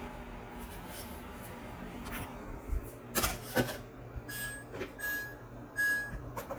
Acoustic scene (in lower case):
kitchen